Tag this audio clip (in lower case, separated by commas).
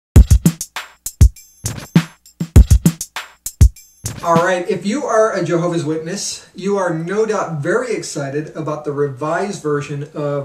speech, drum machine, music